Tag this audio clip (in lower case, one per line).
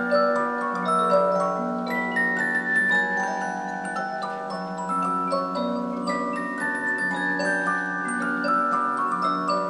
tick-tock